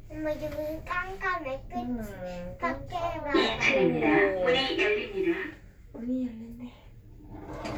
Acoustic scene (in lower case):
elevator